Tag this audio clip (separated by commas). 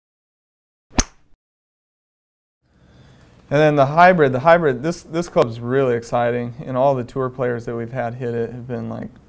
Speech